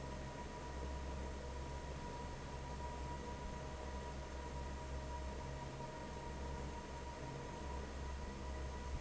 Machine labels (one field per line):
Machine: fan